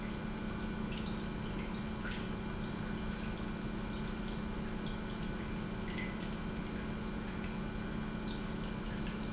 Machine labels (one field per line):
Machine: pump